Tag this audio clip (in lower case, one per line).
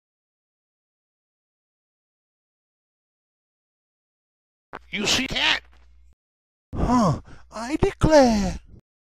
speech